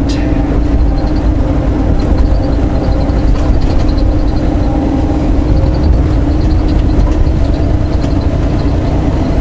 Vehicle, vehicle vibrating, driving